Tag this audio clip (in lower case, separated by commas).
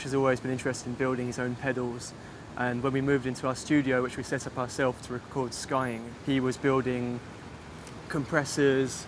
speech